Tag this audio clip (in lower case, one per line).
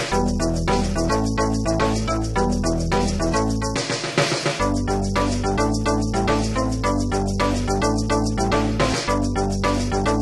music
video game music